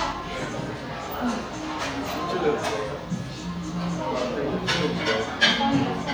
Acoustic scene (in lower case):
cafe